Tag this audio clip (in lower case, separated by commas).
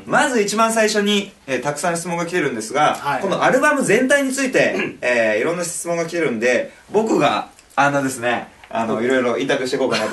speech